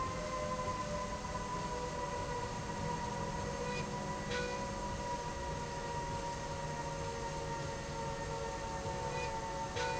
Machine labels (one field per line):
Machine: slide rail